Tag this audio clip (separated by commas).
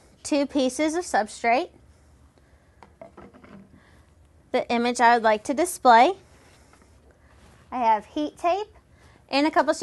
Speech